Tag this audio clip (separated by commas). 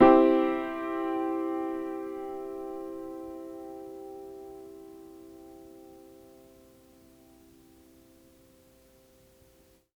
Music, Keyboard (musical), Piano, Musical instrument